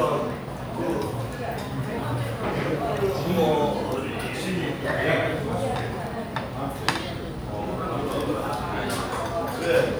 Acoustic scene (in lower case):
restaurant